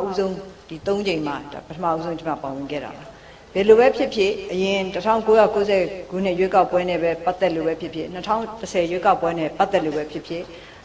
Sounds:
woman speaking, speech

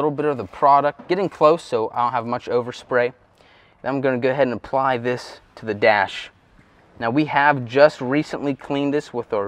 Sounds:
speech

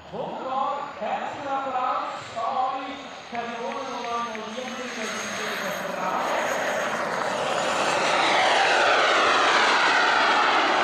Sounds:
airplane flyby

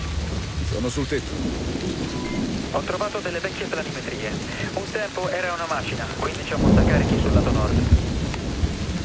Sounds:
thunder, rain on surface, thunderstorm, rain

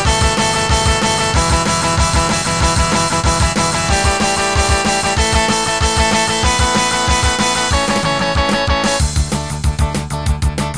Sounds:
plucked string instrument, musical instrument, guitar, music, electric guitar

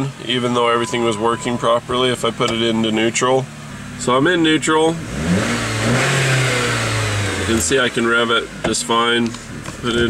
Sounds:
vehicle, car

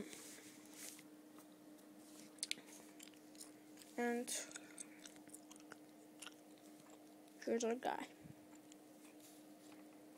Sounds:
inside a small room, speech

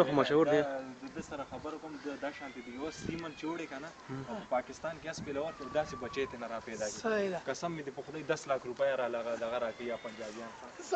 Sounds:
speech

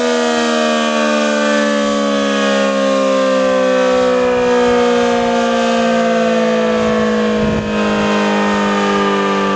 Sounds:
siren, civil defense siren

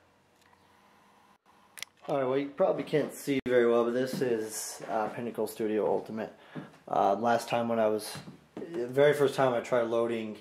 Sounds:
inside a small room, speech

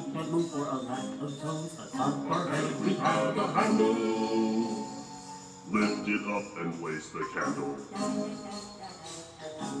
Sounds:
music, male singing

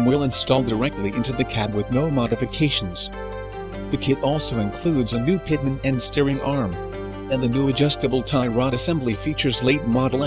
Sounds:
music, speech

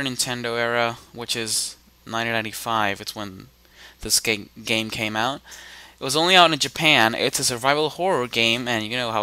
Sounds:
speech

